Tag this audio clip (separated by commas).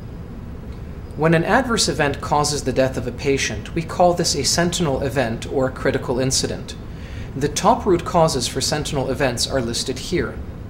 Speech